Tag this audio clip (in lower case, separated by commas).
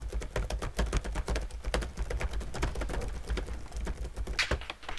typing, home sounds, computer keyboard